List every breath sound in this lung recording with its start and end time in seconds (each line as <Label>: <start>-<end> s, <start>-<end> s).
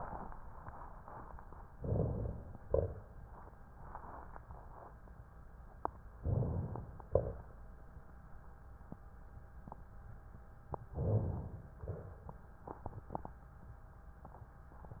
Inhalation: 1.76-2.66 s, 6.22-6.87 s, 10.96-11.72 s
Exhalation: 2.66-3.21 s, 7.12-7.58 s, 11.80-12.46 s
Rhonchi: 1.77-2.65 s, 2.68-3.21 s, 6.20-6.86 s, 7.09-7.61 s